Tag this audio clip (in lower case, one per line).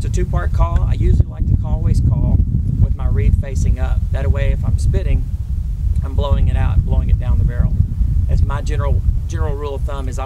speech